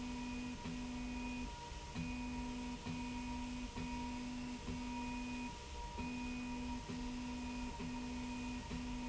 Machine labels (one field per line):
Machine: slide rail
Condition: normal